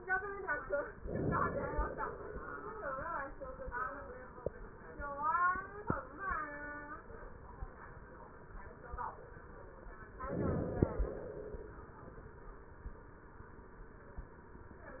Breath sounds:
Inhalation: 0.97-1.92 s, 10.09-10.88 s
Exhalation: 1.92-2.90 s, 10.88-11.81 s

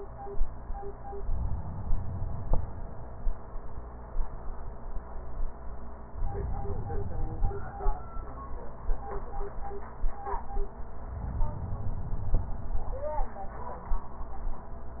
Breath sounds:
Inhalation: 1.18-3.05 s, 6.19-8.05 s, 11.13-13.00 s

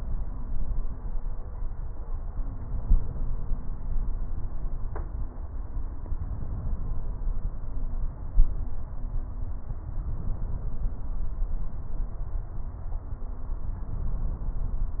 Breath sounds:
Inhalation: 6.25-7.11 s, 10.03-11.06 s, 13.90-14.94 s

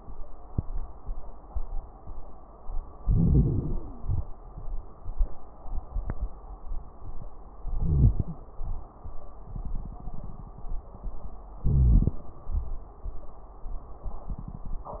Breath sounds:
Inhalation: 2.98-4.28 s, 7.70-8.43 s, 11.60-12.28 s
Wheeze: 3.32-4.06 s
Crackles: 2.98-4.28 s, 7.70-8.43 s, 11.60-12.28 s

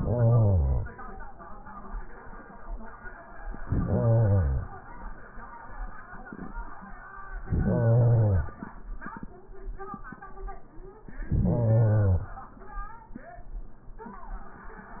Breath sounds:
Inhalation: 0.00-1.00 s, 3.65-4.77 s, 7.43-8.55 s, 11.09-12.48 s

